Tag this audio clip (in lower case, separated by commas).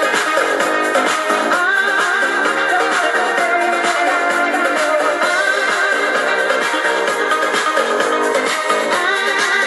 music